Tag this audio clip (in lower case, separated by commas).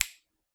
hands, finger snapping